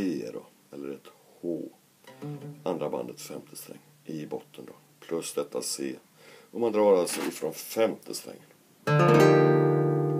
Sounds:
Guitar, Speech, Plucked string instrument, Music, Acoustic guitar, Musical instrument, Independent music

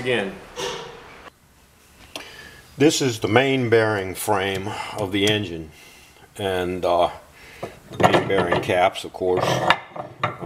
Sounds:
Speech

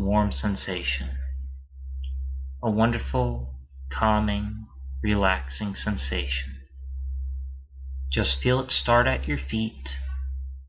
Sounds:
Speech

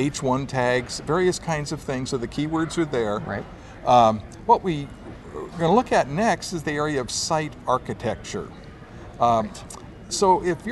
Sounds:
Speech

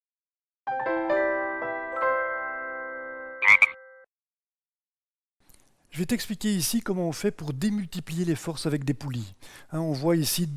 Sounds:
Speech, Music

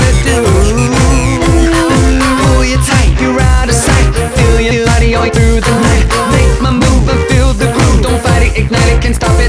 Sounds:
Soundtrack music, Music

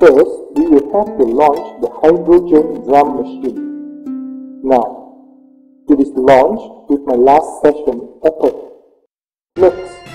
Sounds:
Speech, Music

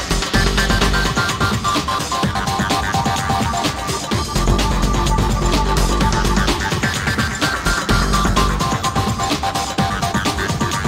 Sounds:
Music

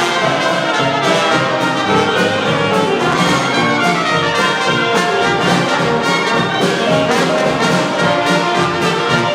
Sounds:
Music

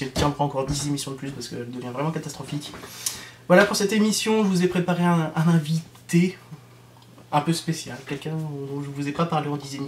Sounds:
Speech

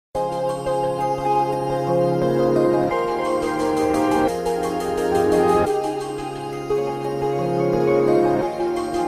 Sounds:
Music, New-age music

